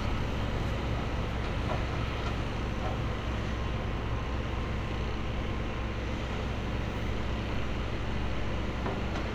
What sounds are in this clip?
engine of unclear size